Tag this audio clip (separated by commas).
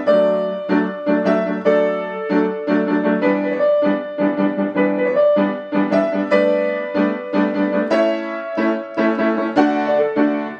Music